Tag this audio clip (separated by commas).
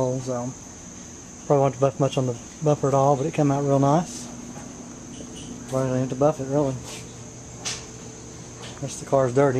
Speech